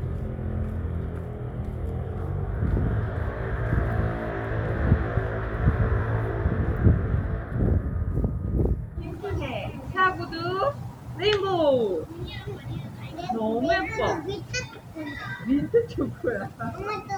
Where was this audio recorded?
in a residential area